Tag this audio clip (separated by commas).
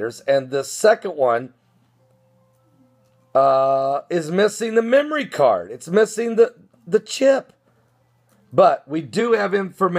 Speech